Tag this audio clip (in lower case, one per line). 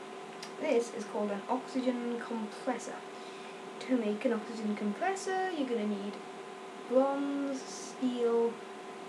speech